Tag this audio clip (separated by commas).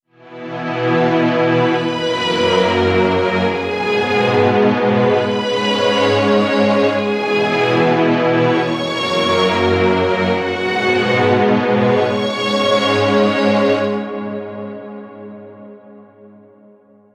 Music, Musical instrument